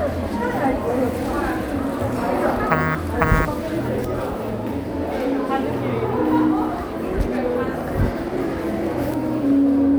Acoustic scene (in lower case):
crowded indoor space